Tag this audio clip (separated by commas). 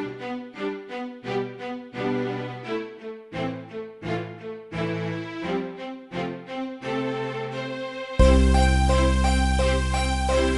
Music